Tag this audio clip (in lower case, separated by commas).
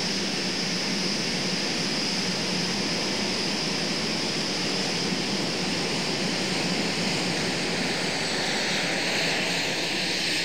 airplane, vehicle